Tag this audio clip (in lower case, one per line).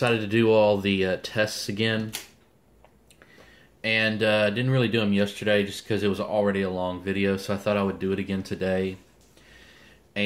speech